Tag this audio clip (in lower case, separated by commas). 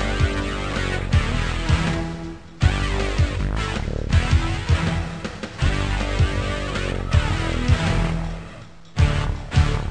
video game music, music